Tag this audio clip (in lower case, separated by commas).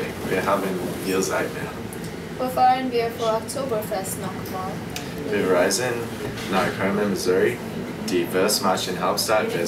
inside a large room or hall, speech